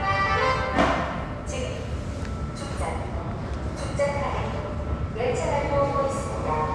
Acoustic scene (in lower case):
subway station